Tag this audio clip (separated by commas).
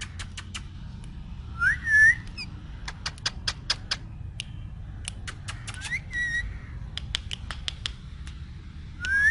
parrot talking